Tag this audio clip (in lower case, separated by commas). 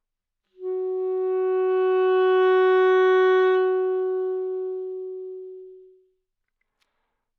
musical instrument, wind instrument, music